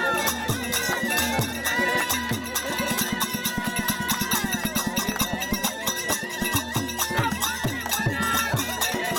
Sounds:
Male singing, Music

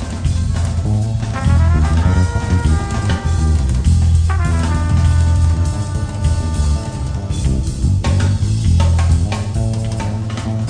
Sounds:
Music, Background music

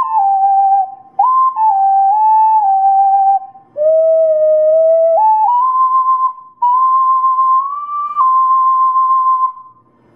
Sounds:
Flute, Wind instrument

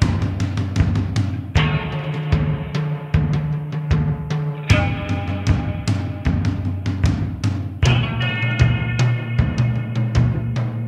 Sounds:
Music

